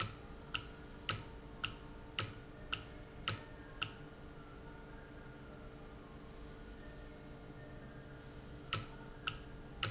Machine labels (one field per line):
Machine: valve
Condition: normal